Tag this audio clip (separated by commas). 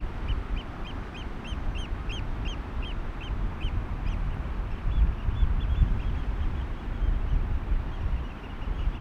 Bird, Animal, Bird vocalization, Wild animals